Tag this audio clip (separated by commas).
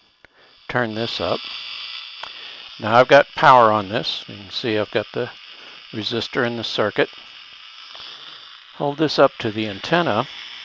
Speech